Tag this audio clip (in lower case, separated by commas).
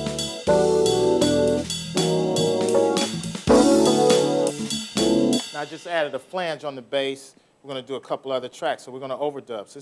speech, music